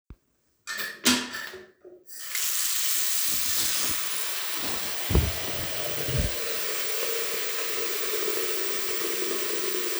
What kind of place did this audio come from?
restroom